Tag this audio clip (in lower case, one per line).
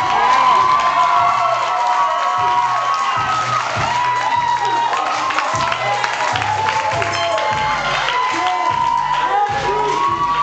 speech